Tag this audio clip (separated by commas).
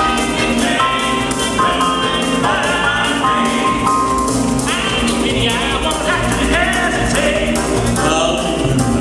Music, Music of Latin America, Gospel music, Choir, Classical music, Singing